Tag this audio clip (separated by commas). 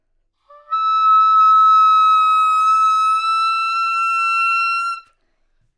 woodwind instrument, Music, Musical instrument